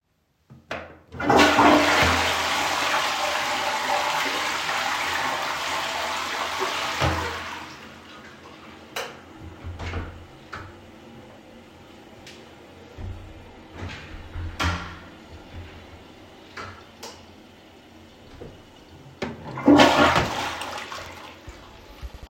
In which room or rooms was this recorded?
lavatory